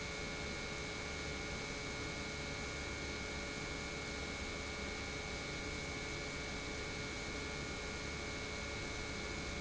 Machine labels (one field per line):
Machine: pump